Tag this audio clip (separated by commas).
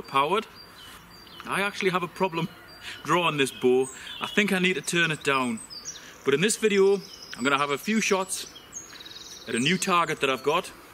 Bird vocalization, Bird, Speech